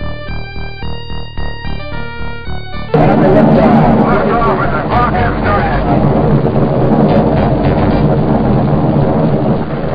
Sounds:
speech
music

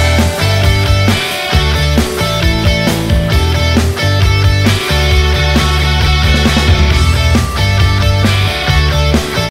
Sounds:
music

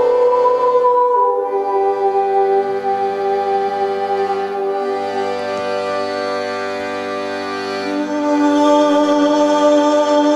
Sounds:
music

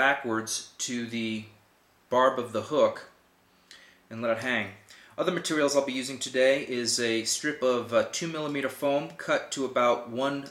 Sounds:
speech

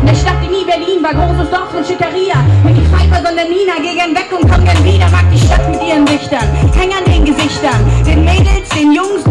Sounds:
music

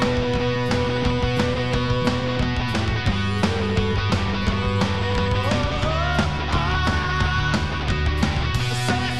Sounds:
music

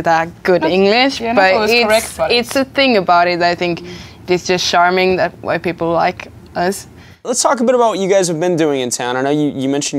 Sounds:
inside a large room or hall
speech

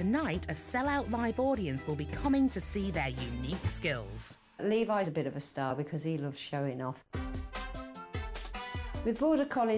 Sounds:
speech
music

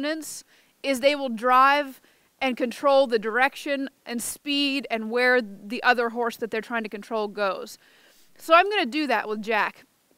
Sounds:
speech

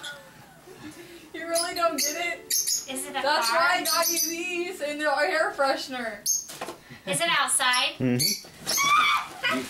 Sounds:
speech
inside a small room

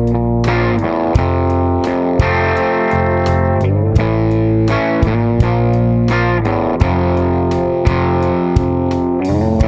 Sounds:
music

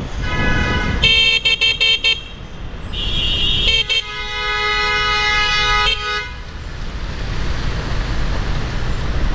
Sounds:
honking

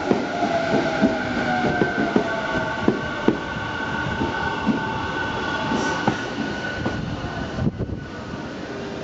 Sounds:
outside, urban or man-made
train
vehicle

